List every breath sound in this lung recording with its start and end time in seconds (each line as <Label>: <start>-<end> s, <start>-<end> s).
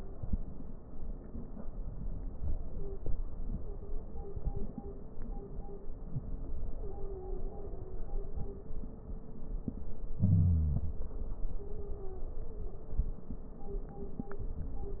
Wheeze: 5.99-6.28 s, 10.12-11.03 s
Stridor: 6.73-8.05 s, 11.58-12.91 s